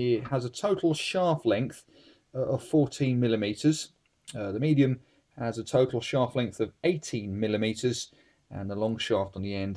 An adult male is speaking